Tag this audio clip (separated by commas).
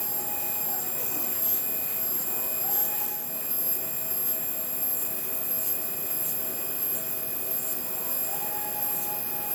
Printer